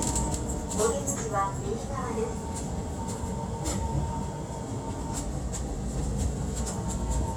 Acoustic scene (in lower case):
subway train